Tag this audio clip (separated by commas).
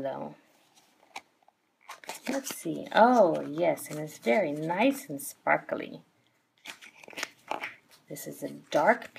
Speech